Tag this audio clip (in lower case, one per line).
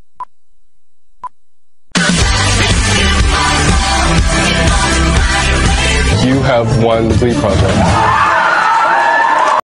music
speech